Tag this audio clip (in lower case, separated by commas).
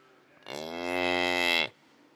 livestock, animal